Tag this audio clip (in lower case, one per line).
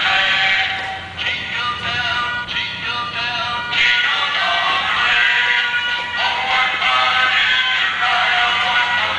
music